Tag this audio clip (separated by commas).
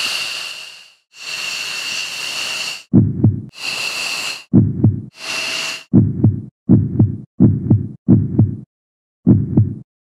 Fixed-wing aircraft, Vehicle